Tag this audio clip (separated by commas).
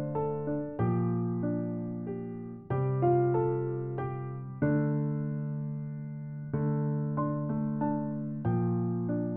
Music, New-age music